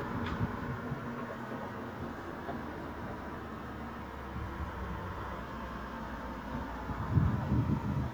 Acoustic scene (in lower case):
street